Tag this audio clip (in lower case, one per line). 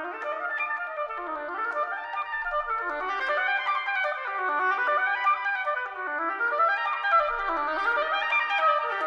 playing oboe